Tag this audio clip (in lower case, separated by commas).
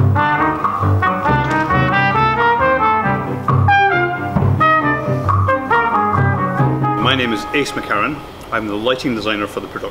music, classical music, speech